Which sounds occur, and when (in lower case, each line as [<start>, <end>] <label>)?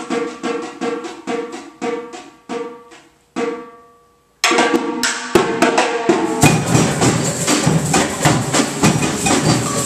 [0.00, 3.74] music
[0.00, 9.85] background noise
[4.42, 9.85] music